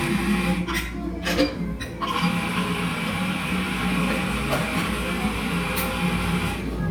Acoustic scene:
cafe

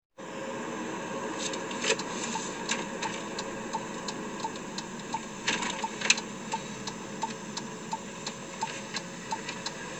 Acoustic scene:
car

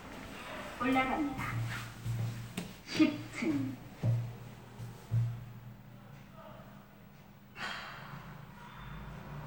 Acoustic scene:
elevator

